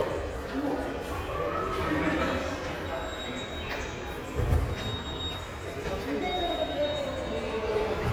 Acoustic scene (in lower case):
subway station